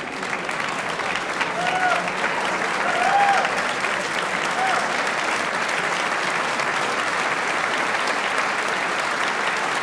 People cheering and applauding loudly